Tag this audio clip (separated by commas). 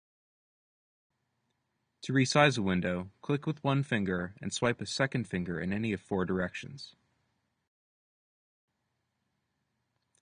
Speech